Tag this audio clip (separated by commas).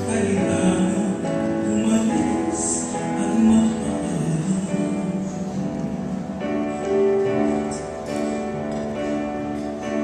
Female singing, Music